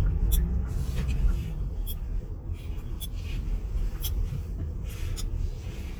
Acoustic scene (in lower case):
car